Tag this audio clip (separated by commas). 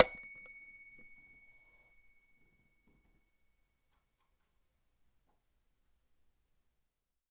Bell